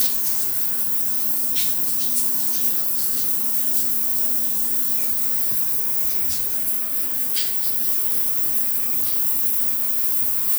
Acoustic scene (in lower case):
restroom